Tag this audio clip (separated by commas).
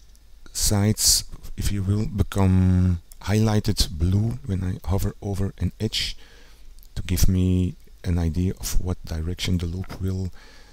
Speech